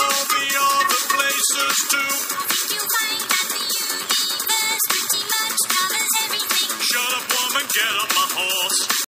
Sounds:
Music

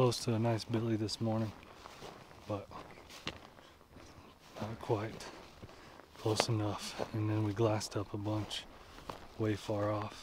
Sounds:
Speech

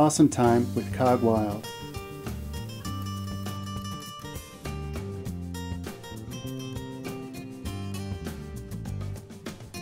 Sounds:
Speech, Music

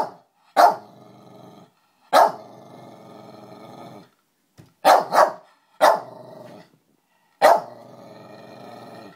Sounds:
Animal, Dog, Bark, canids, dog barking

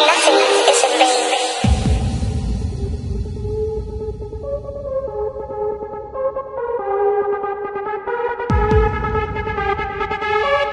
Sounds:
Electronic music, Music

